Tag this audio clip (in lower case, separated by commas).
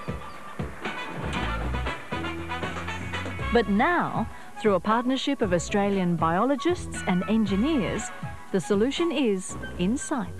music, speech